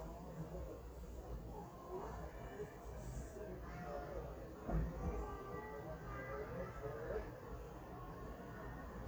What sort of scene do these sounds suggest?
residential area